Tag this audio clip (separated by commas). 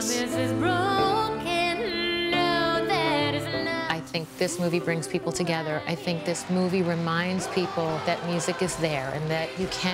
Music, Speech